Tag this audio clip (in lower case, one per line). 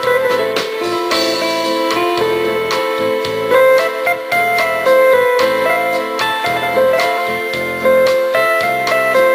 music
background music
rhythm and blues